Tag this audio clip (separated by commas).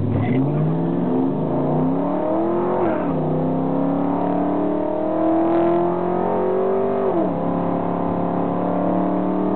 Car, Vehicle, Motor vehicle (road), Car passing by